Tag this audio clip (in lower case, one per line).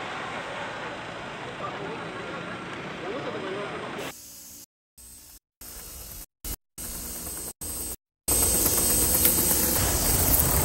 white noise
speech